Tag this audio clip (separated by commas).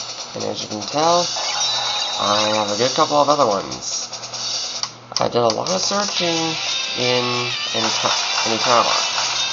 Speech, Music